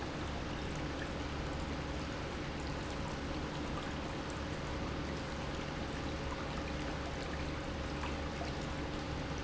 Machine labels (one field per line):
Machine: pump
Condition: normal